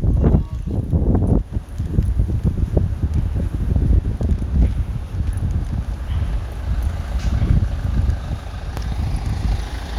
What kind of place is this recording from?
residential area